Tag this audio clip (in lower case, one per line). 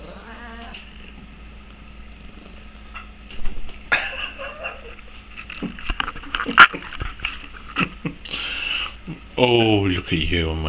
speech